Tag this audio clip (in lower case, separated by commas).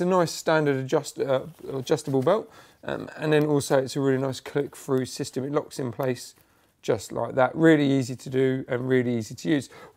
speech